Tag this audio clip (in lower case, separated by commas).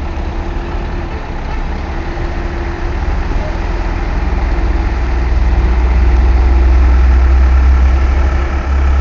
vehicle, truck